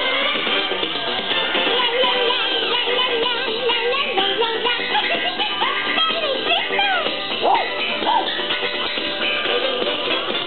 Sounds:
music
speech

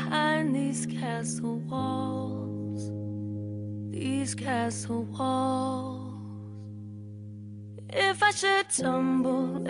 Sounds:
music
theme music

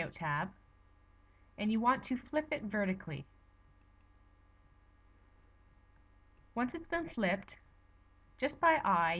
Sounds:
speech

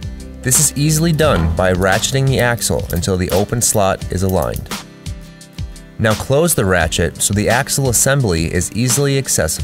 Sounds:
pawl
mechanisms

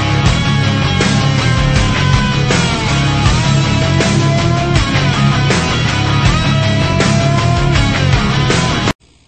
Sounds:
music

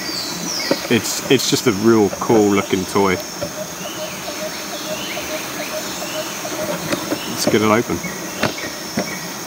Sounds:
speech
animal

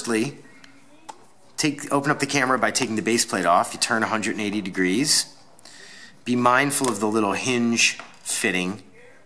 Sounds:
speech

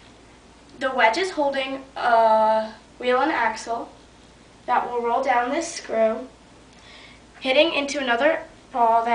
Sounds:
speech

